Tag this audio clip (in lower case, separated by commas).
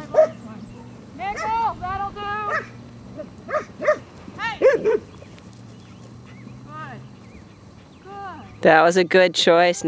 animal, domestic animals, bow-wow, dog, speech